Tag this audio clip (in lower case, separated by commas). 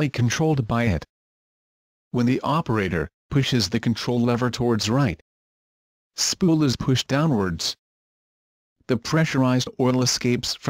speech